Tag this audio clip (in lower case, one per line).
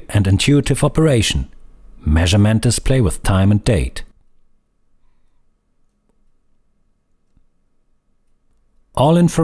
speech